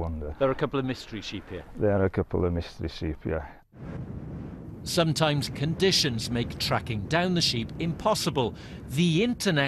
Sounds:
Speech

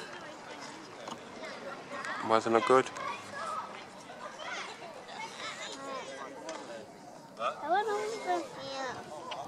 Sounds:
Speech, outside, urban or man-made

